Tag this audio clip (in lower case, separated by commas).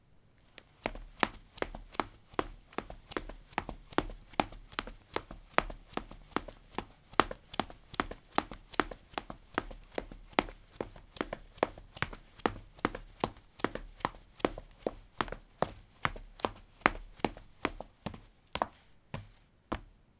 run